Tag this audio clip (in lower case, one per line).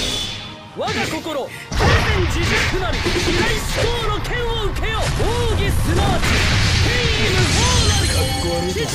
speech